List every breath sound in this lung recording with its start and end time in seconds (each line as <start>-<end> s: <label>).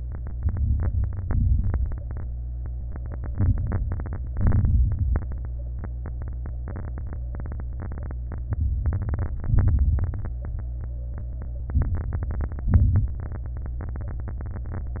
0.36-1.04 s: inhalation
0.36-1.04 s: crackles
1.21-1.89 s: exhalation
1.21-1.89 s: crackles
3.32-4.00 s: inhalation
3.32-4.00 s: crackles
4.30-4.98 s: exhalation
4.30-4.98 s: crackles
8.51-9.36 s: inhalation
8.51-9.36 s: crackles
9.49-10.33 s: exhalation
9.49-10.33 s: crackles
11.81-12.65 s: inhalation
11.81-12.65 s: crackles
12.67-13.20 s: exhalation
12.67-13.20 s: crackles